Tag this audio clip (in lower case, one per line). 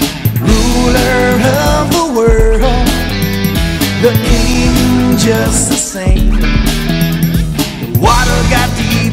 music